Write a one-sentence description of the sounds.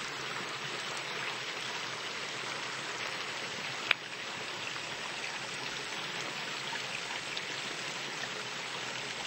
Water flowing outside